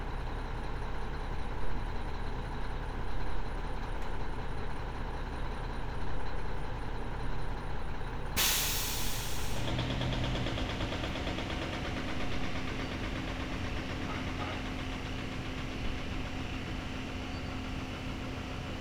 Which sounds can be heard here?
large-sounding engine